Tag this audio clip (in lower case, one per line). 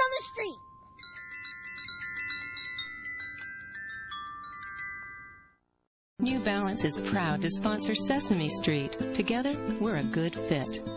outside, rural or natural
speech
music
glockenspiel